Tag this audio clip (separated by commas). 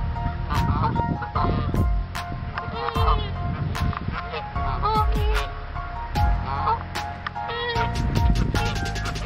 goose honking